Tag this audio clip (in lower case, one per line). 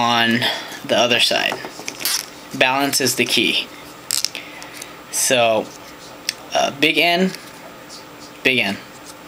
speech
inside a small room